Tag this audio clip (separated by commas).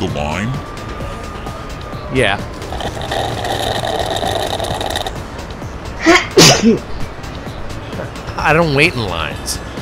Music, Speech